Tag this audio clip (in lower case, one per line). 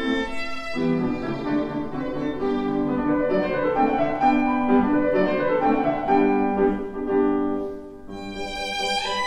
violin
musical instrument
music